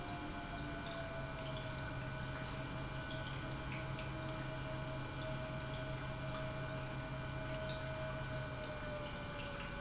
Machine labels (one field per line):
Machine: pump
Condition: normal